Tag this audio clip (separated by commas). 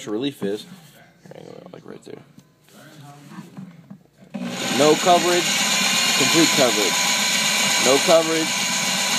Pump (liquid)